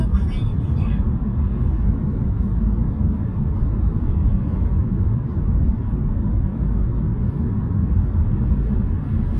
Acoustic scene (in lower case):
car